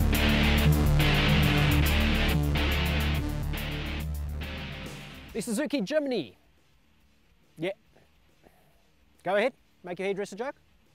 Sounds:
speech
music

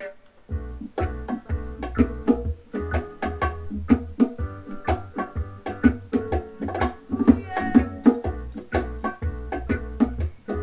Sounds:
playing bongo

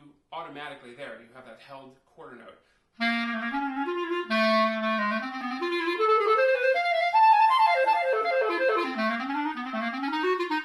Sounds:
playing clarinet

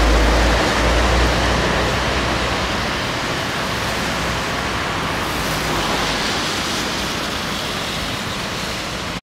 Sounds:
vehicle
driving buses
bus

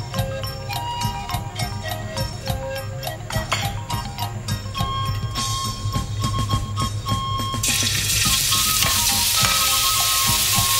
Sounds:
frying (food)
music
sizzle

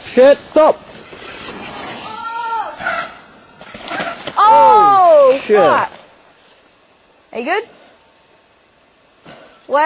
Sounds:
speech

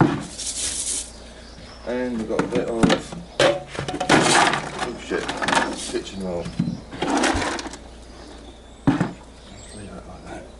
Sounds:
outside, rural or natural
speech

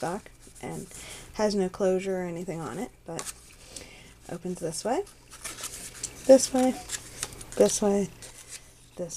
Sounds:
speech

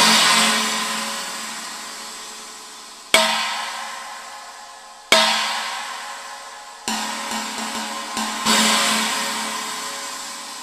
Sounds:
music

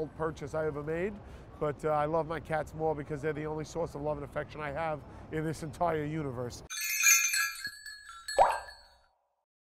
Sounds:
outside, urban or man-made
speech

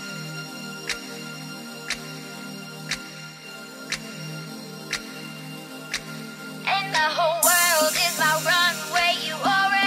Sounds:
music

